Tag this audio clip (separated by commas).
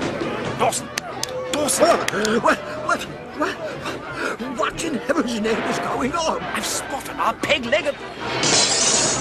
Music, Speech